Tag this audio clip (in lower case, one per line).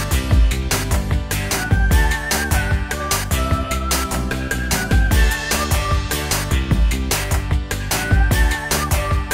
music